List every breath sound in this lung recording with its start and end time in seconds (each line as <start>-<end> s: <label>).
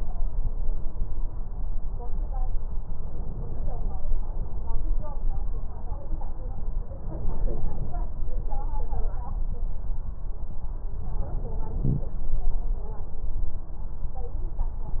No breath sounds were labelled in this clip.